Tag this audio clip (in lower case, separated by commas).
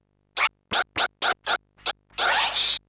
scratching (performance technique), music, musical instrument